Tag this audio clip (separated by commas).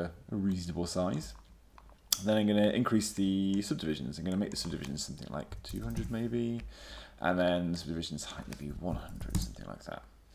Speech